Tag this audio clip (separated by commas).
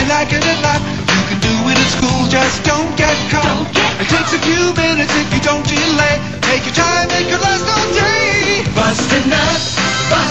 Music